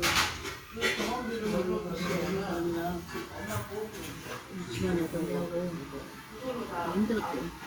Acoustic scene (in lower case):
restaurant